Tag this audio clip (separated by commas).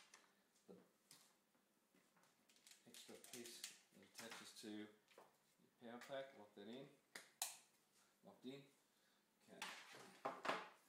Speech